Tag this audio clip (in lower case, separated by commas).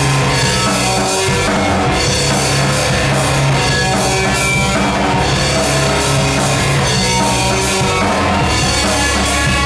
drum kit, music, rock music, musical instrument, guitar, drum